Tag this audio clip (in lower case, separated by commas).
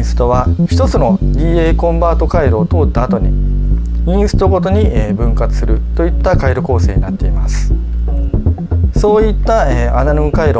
speech, music, drum machine